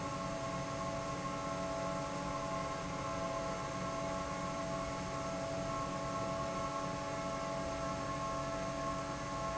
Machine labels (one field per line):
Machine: fan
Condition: normal